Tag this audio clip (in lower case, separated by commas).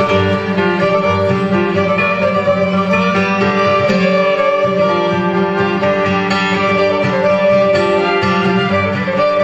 guitar, bowed string instrument, fiddle, musical instrument, music, wedding music